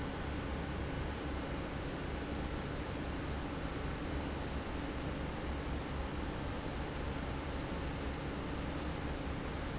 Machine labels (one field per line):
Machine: fan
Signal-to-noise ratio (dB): -6 dB